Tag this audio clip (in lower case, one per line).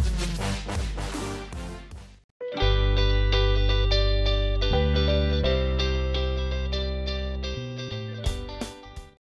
music